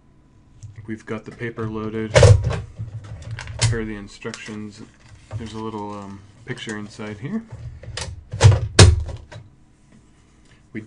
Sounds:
speech

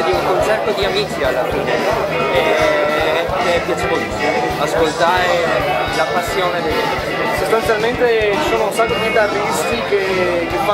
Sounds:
electric guitar, speech, musical instrument, music, guitar, plucked string instrument

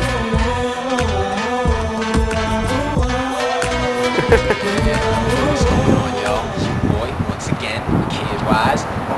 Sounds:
speech, music

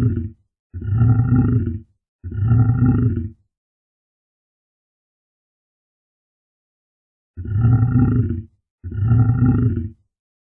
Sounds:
lions growling

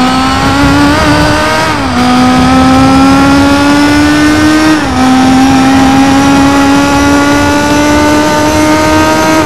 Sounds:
car passing by, car, vehicle

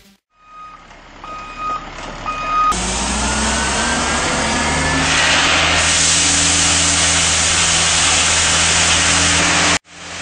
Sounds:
truck, vehicle

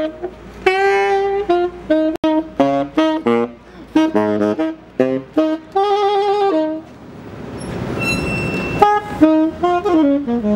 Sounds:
music

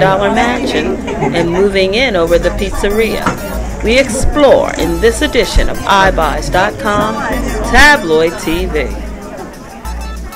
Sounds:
speech, music

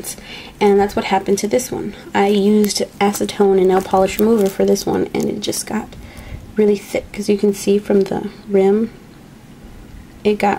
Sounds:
speech, crackle

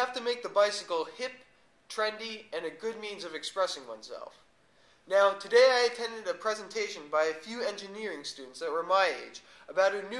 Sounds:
speech

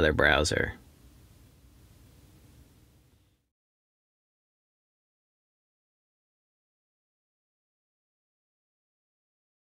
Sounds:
speech

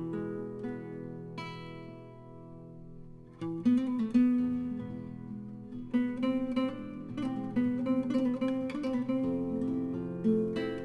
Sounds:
tender music, music of latin america, flamenco, music, traditional music

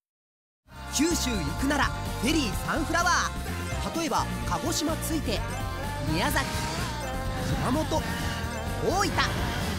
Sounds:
music, speech

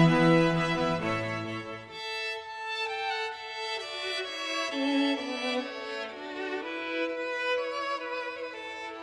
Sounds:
fiddle, music, musical instrument

